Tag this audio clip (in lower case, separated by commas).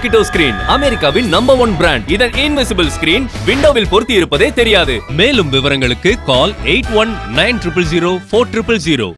speech, music